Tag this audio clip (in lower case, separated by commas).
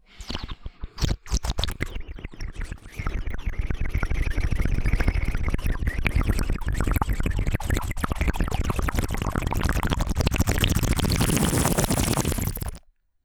water, gurgling, liquid